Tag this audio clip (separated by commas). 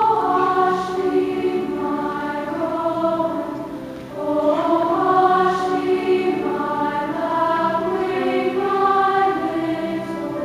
Music